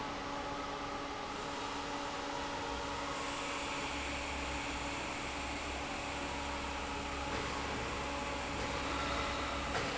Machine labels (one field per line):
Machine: fan